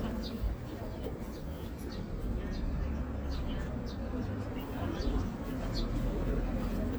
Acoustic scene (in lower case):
park